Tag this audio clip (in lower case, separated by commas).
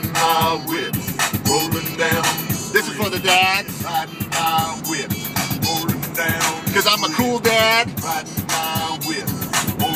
rapping